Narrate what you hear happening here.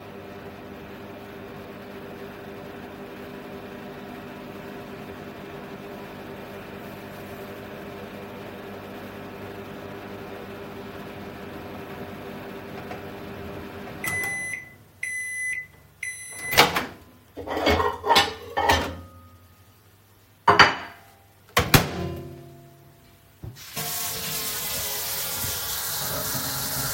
Microwave is working. Microwave beeps, I open the door and take out the plate. I put the plate on the kitchen counter. I open the water in the sink.